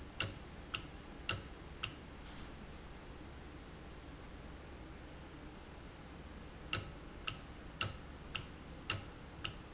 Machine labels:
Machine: valve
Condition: normal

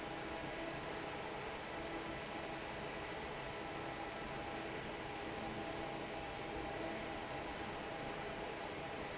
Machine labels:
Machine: fan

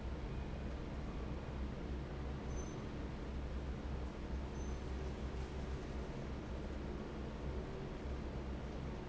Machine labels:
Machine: fan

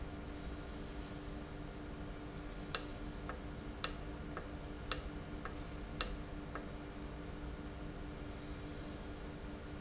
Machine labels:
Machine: valve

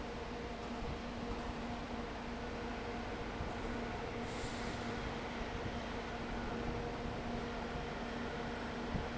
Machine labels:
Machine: fan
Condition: abnormal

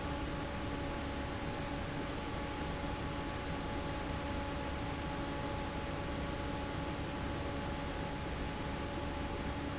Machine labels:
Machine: fan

